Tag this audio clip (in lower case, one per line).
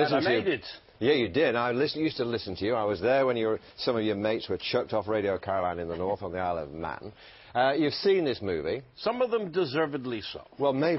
speech